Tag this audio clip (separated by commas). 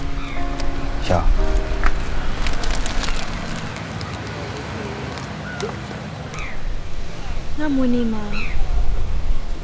Music, Speech